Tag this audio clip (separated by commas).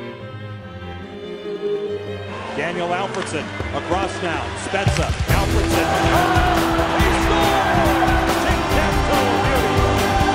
Music, Speech